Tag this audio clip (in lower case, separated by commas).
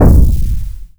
explosion